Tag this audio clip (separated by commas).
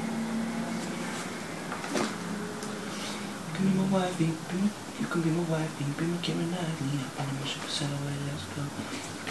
Male singing